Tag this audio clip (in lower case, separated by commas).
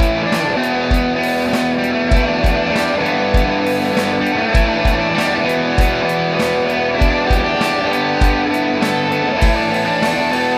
heavy metal, punk rock, music, progressive rock